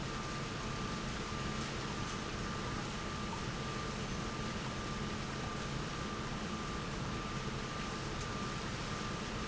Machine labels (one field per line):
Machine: pump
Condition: abnormal